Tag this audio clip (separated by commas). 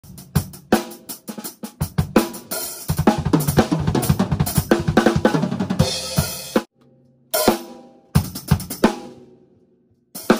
playing cymbal